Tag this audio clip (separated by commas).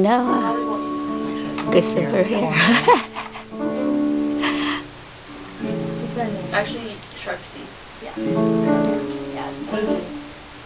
Musical instrument, Speech, Music, Violin